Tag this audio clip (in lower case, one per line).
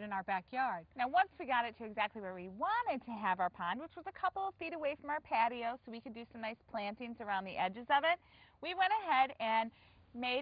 speech